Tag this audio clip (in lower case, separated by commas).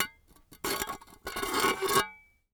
dishes, pots and pans, glass, domestic sounds